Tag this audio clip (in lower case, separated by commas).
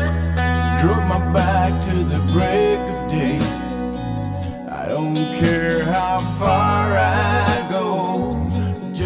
music, bluegrass, country